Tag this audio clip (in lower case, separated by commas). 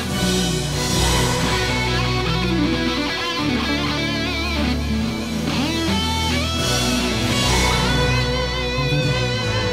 music